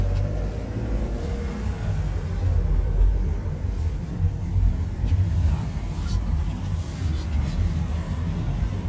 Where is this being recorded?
in a car